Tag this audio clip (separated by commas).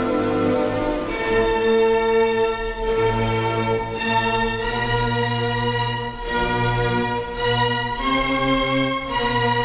Music, Violin, Musical instrument